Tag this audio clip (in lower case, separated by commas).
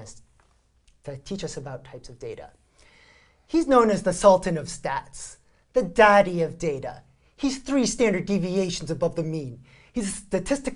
speech